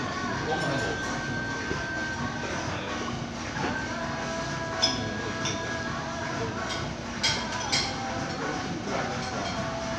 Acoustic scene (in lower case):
crowded indoor space